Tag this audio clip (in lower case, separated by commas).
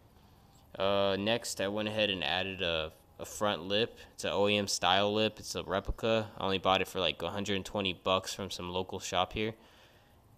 speech